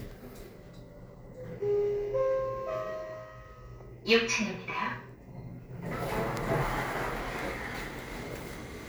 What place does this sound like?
elevator